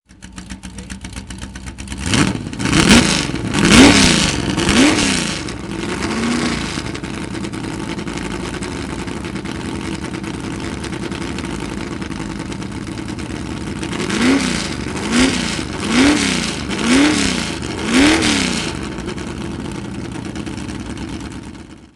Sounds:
vroom, race car, vehicle, car, motor vehicle (road), engine, idling

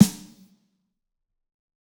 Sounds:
music, snare drum, musical instrument, drum, percussion

